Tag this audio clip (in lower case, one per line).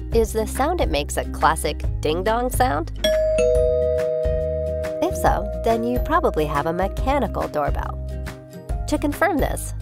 doorbell
music
speech